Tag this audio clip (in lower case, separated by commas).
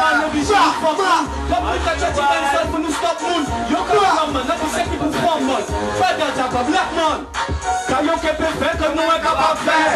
music